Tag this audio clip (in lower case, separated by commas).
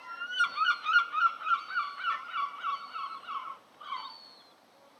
bird song, wild animals, bird, animal